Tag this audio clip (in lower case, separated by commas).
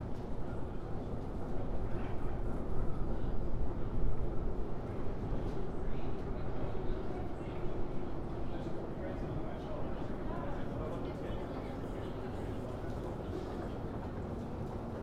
rail transport, vehicle, subway